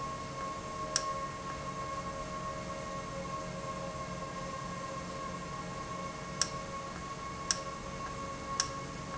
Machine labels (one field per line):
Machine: valve